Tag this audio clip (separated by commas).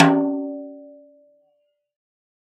Percussion, Snare drum, Drum, Music, Musical instrument